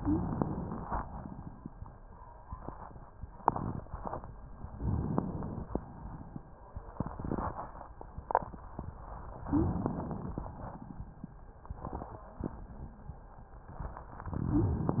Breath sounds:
0.00-0.25 s: wheeze
0.00-0.91 s: inhalation
0.95-1.73 s: exhalation
4.78-5.71 s: inhalation
5.71-6.39 s: exhalation
9.45-9.83 s: wheeze
9.45-10.46 s: inhalation
10.46-11.12 s: exhalation
14.31-14.97 s: inhalation
14.48-14.86 s: wheeze

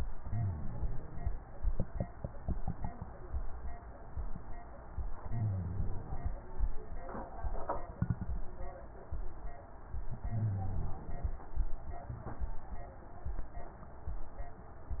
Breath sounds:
0.11-1.33 s: inhalation
5.13-6.34 s: inhalation
10.13-11.34 s: inhalation

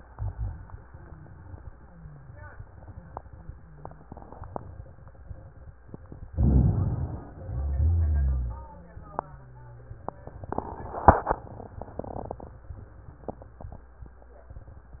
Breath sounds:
6.32-7.38 s: inhalation
7.34-8.67 s: exhalation
7.34-8.67 s: rhonchi

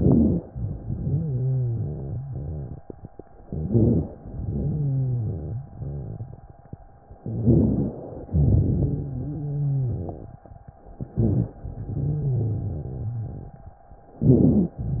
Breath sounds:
0.00-0.42 s: inhalation
0.00-0.44 s: rhonchi
0.49-2.17 s: exhalation
0.49-2.89 s: rhonchi
3.50-4.08 s: inhalation
3.50-4.08 s: rhonchi
4.19-5.60 s: exhalation
4.19-5.71 s: rhonchi
7.25-7.97 s: inhalation
7.25-7.97 s: rhonchi
8.31-9.13 s: exhalation
8.31-10.42 s: rhonchi
11.12-11.59 s: inhalation
11.12-11.59 s: rhonchi
11.71-13.83 s: exhalation
11.71-13.83 s: rhonchi
14.19-14.80 s: inhalation
14.19-14.80 s: rhonchi

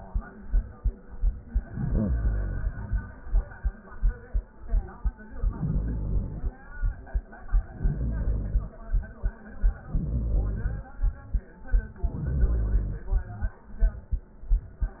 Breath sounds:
1.50-3.14 s: inhalation
5.28-6.66 s: inhalation
7.59-8.74 s: inhalation
9.84-10.98 s: inhalation
11.94-13.30 s: inhalation

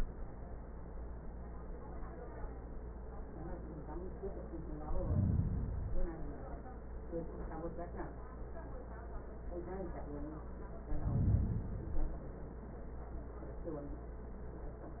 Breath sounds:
4.74-6.24 s: inhalation
10.76-12.26 s: inhalation

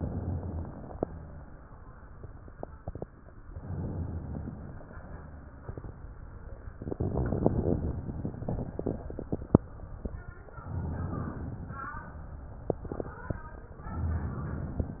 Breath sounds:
0.00-0.94 s: inhalation
0.94-2.03 s: exhalation
3.52-4.83 s: inhalation
4.84-5.89 s: exhalation
6.79-8.02 s: inhalation
8.02-9.57 s: exhalation
10.60-11.92 s: inhalation
11.92-13.35 s: exhalation
13.89-14.98 s: inhalation
14.98-15.00 s: exhalation

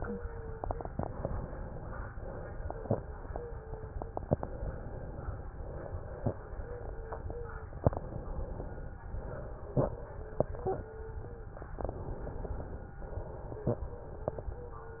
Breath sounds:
0.00-0.58 s: wheeze
0.85-2.06 s: inhalation
2.16-4.19 s: exhalation
3.33-4.09 s: wheeze
4.22-5.44 s: inhalation
5.49-7.76 s: exhalation
6.60-7.70 s: wheeze
7.81-9.03 s: inhalation
9.06-11.70 s: exhalation
10.47-11.56 s: wheeze
11.74-12.95 s: inhalation
13.03-15.00 s: exhalation
13.88-15.00 s: wheeze

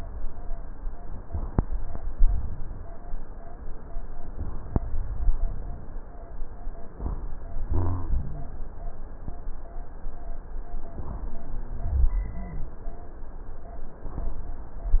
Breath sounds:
7.65-8.56 s: rhonchi

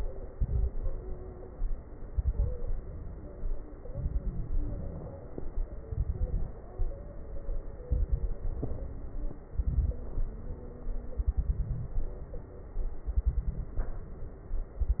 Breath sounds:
0.30-0.74 s: inhalation
0.30-0.74 s: crackles
2.07-2.58 s: inhalation
2.07-2.58 s: crackles
3.88-4.58 s: inhalation
3.88-4.58 s: crackles
5.83-6.53 s: inhalation
5.83-6.53 s: crackles
7.87-8.40 s: inhalation
7.87-8.40 s: crackles
9.50-10.03 s: inhalation
9.50-10.03 s: crackles
11.19-11.99 s: inhalation
11.19-11.99 s: crackles
13.07-13.87 s: inhalation
13.07-13.87 s: crackles

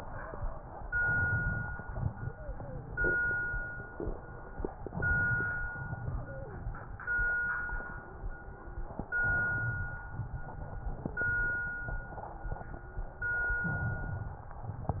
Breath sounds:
0.94-1.78 s: inhalation
1.80-4.76 s: exhalation
2.28-2.90 s: wheeze
4.86-5.70 s: inhalation
5.74-9.10 s: exhalation
6.10-6.72 s: wheeze
9.20-10.04 s: inhalation
10.14-13.54 s: exhalation
13.66-14.50 s: inhalation

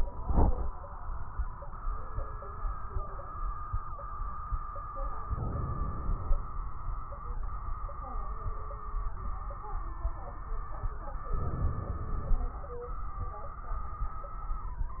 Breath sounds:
5.25-6.39 s: crackles
5.28-6.41 s: inhalation
11.31-12.45 s: inhalation
11.31-12.45 s: crackles

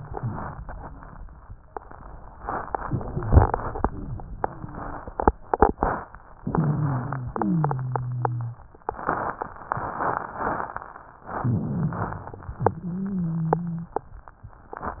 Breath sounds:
6.41-7.29 s: inhalation
6.41-7.29 s: wheeze
7.34-8.65 s: wheeze
11.38-12.31 s: inhalation
11.38-12.31 s: wheeze
12.60-14.02 s: wheeze

